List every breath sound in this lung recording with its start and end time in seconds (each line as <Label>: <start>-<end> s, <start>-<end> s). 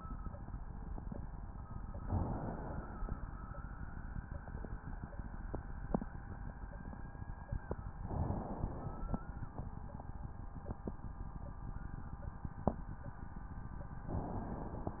Inhalation: 1.97-3.21 s, 7.97-9.21 s, 14.02-15.00 s